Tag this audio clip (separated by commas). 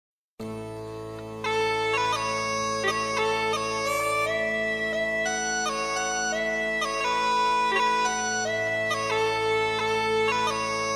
Bagpipes, woodwind instrument